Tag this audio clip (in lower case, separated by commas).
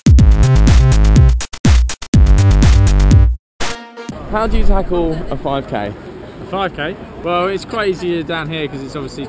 music, outside, urban or man-made, speech, male speech